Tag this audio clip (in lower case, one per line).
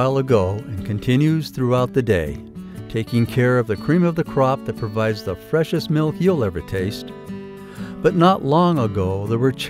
speech
music